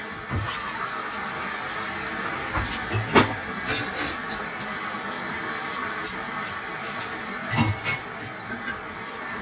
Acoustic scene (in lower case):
kitchen